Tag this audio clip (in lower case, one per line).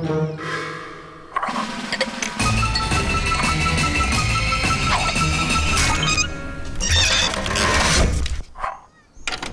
music